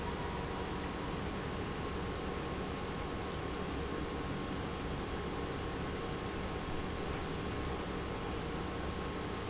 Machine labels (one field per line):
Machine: pump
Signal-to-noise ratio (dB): -6 dB